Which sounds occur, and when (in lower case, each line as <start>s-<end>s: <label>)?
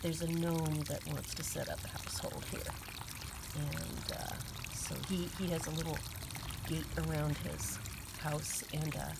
0.0s-9.1s: mechanisms
0.0s-9.1s: pour